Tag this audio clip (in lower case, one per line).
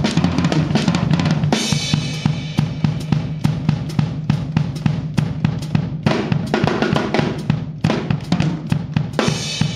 snare drum
music
percussion
drum
musical instrument
cymbal
drum kit